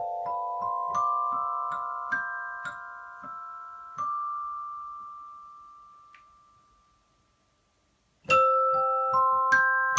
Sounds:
Piano, Musical instrument, Tender music, Music, Keyboard (musical)

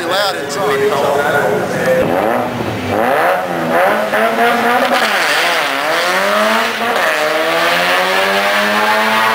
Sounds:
Motor vehicle (road), Speech, Vehicle, Car

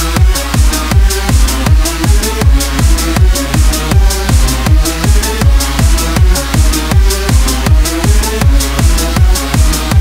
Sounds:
Drum and bass, Electronic music, Dubstep, Music

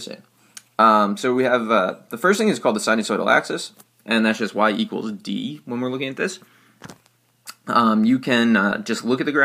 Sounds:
Speech, Writing

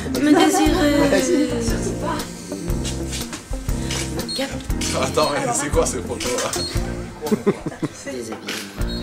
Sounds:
Speech, Music

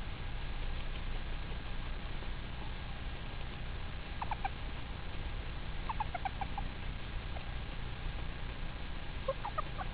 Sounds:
livestock, Bird

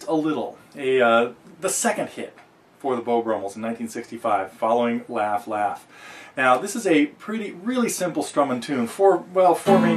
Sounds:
Musical instrument, Plucked string instrument, Speech, Music, Acoustic guitar, Strum, Guitar

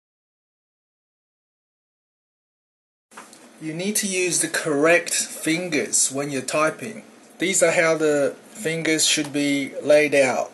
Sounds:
typing on typewriter

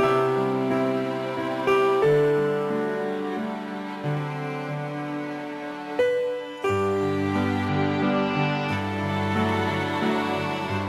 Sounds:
Music

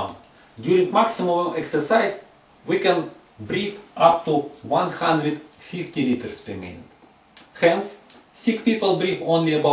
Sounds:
Speech

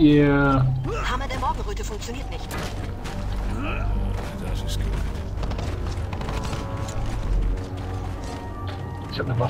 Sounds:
Music, Speech

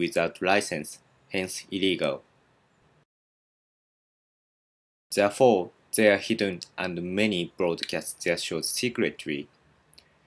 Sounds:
Speech

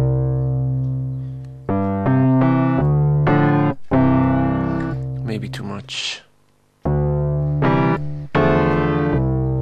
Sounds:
Keyboard (musical), Electric piano, Musical instrument, Speech, Synthesizer, Piano, Music

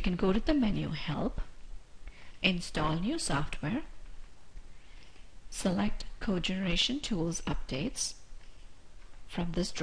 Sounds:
Speech

